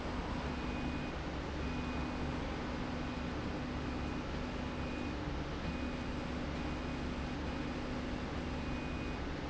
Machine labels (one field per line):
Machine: slide rail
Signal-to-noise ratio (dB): -6 dB